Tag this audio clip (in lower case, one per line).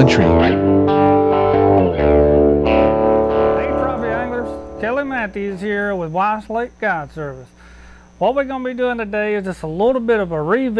echo